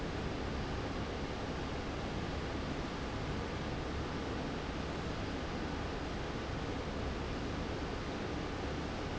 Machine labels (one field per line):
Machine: fan